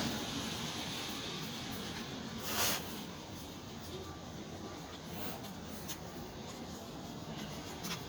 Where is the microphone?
in a residential area